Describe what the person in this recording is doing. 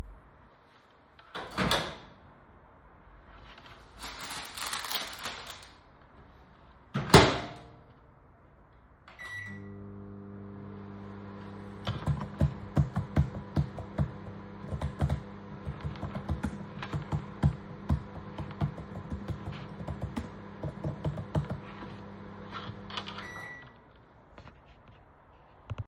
I opened the microwave, put bread in it, then turned it on. While it heated it up I typed on my laptop’s keyboard. Then the microwave rang and I took out the bread.